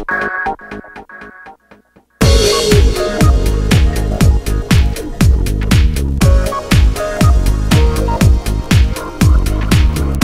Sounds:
music

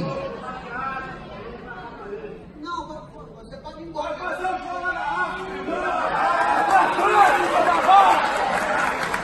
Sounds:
people booing

